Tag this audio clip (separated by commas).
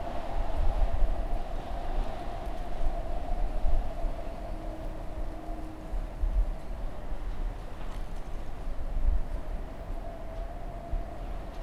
Wind